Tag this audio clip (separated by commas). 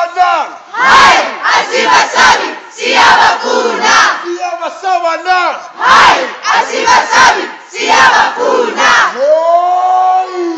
Speech